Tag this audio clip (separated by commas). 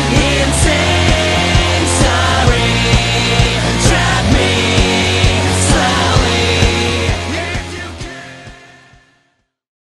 Music